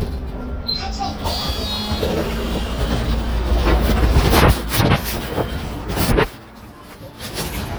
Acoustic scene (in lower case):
bus